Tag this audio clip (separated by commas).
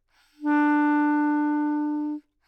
Music, Wind instrument, Musical instrument